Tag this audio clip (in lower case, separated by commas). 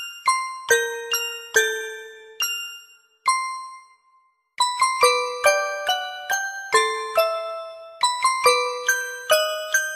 music